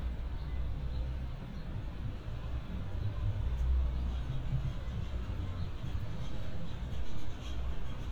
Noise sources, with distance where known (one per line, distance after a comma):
music from a moving source